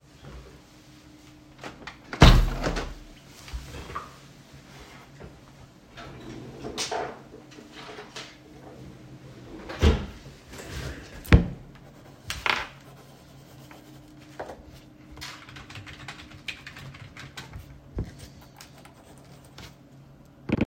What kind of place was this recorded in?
office